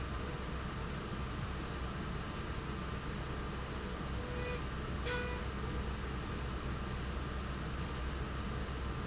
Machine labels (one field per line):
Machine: slide rail